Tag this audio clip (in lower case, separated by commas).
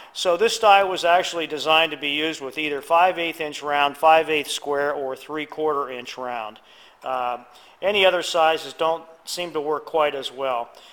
speech